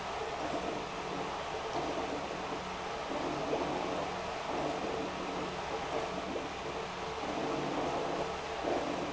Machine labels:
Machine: pump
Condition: abnormal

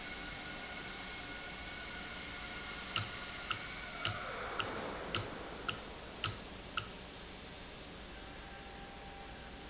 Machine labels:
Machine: valve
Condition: normal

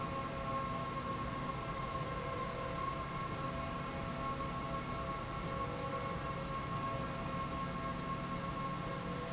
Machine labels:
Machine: slide rail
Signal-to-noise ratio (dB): -6 dB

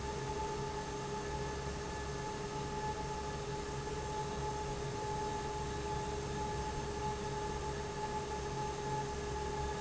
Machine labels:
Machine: fan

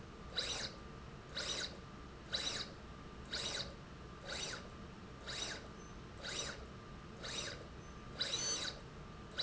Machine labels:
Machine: slide rail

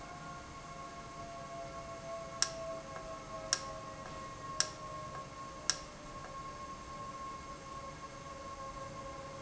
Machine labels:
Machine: valve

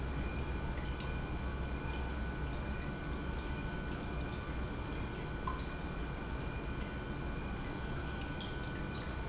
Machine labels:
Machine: pump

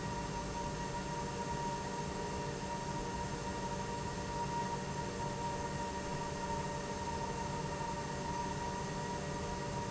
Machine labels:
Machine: pump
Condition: normal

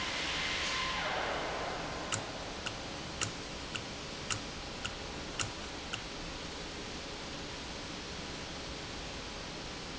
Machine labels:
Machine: valve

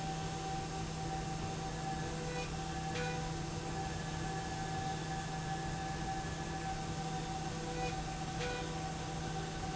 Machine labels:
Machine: slide rail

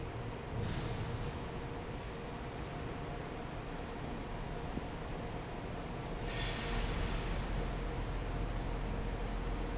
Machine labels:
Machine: fan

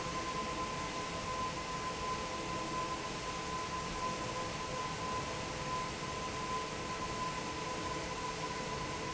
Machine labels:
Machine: fan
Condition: normal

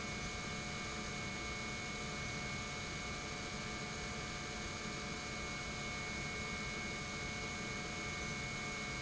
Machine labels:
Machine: pump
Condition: normal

